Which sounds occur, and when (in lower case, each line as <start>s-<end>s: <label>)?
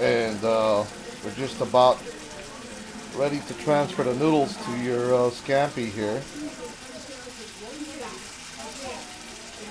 0.0s-0.8s: man speaking
0.0s-9.7s: frying (food)
1.2s-1.9s: man speaking
3.1s-6.3s: man speaking